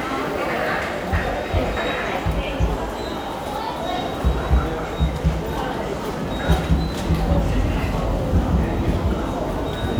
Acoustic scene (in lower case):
subway station